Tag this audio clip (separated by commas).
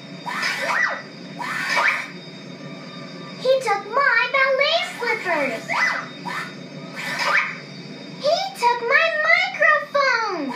Child speech, Speech, Television